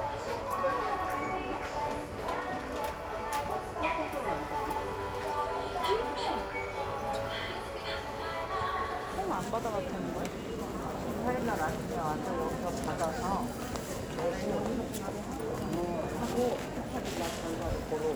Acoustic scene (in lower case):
crowded indoor space